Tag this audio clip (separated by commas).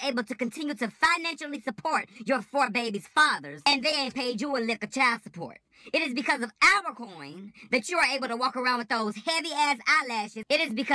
Speech